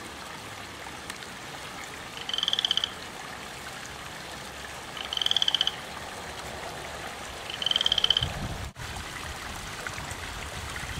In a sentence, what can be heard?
A frog croaking while the sound of running water is in the background